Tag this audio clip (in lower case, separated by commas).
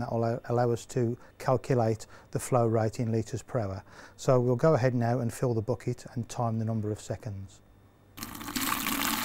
male speech, faucet, speech